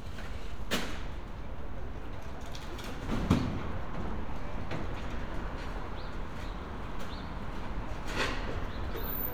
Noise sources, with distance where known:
non-machinery impact

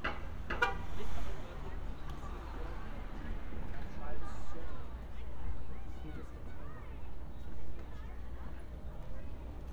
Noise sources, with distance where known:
car horn, near; person or small group talking, near

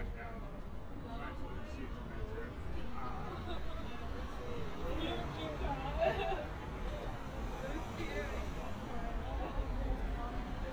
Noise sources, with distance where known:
person or small group talking, near

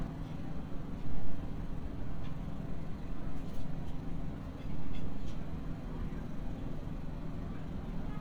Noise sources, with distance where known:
car horn

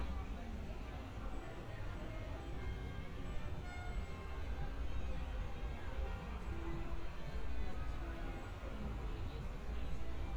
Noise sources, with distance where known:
music from an unclear source, near; person or small group talking, far

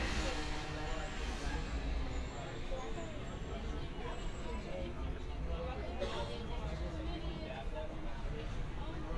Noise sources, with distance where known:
unidentified powered saw, far; person or small group talking

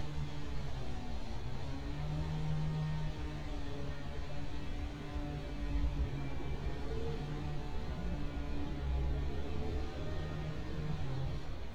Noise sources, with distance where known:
unidentified powered saw

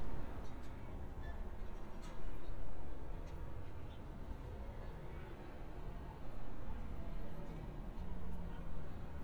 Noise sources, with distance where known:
background noise

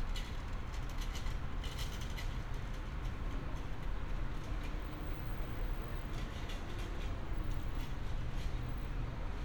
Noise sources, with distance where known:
engine of unclear size

